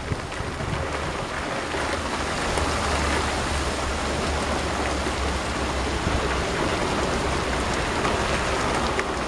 Rain is falling very hard on a surface